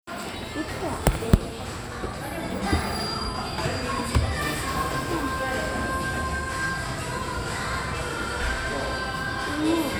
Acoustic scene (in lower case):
cafe